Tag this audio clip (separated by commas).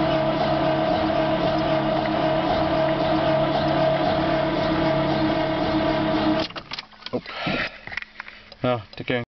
Truck, Speech, Vehicle